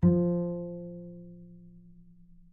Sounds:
Music, Bowed string instrument, Musical instrument

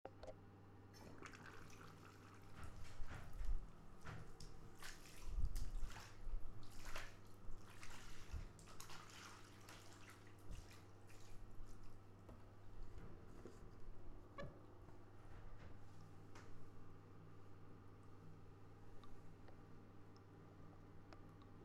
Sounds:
Domestic sounds, Bathtub (filling or washing)

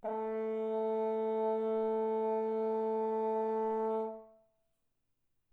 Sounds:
Brass instrument, Musical instrument, Music

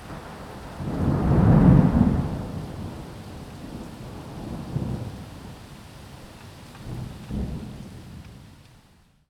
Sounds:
Water, Rain, Thunderstorm, Thunder

